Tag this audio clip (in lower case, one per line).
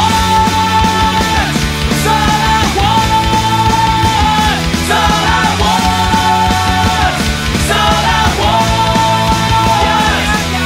music